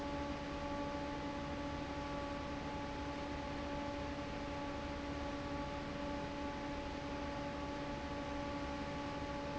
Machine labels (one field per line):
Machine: fan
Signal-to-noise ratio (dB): 0 dB